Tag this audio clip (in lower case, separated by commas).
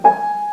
musical instrument, music, piano, keyboard (musical)